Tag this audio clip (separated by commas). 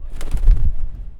Animal, Wild animals, Bird